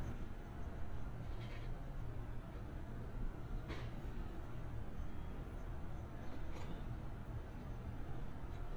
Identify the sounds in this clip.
background noise